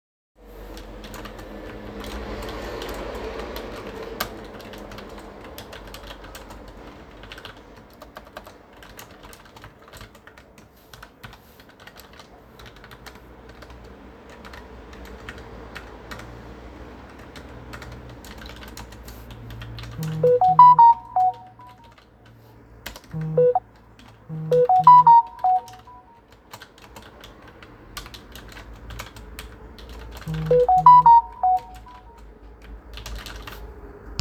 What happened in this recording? I am working on my desk, while i get several notifications.